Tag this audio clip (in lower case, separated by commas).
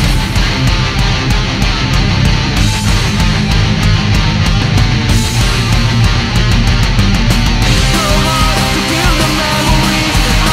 music